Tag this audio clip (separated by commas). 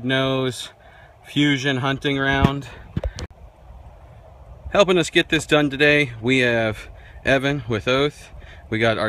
Speech